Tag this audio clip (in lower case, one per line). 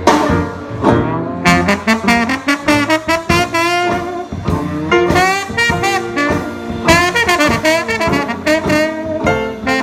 playing trombone